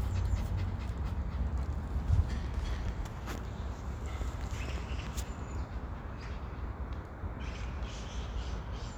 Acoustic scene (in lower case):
park